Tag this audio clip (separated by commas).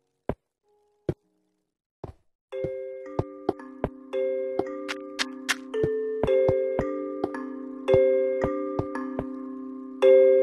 xylophone, Mallet percussion, Glockenspiel